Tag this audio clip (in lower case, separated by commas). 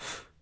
breathing, respiratory sounds